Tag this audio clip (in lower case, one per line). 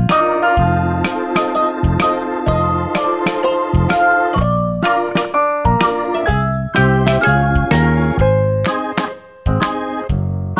music